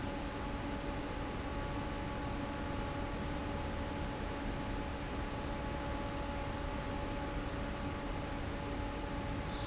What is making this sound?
fan